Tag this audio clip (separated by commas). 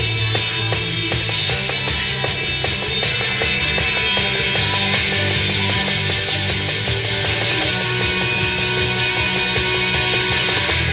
Guitar, Music